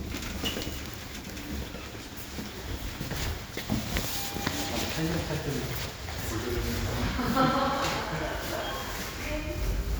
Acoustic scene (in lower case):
elevator